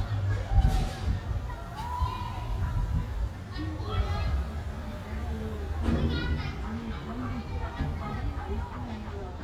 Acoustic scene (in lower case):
residential area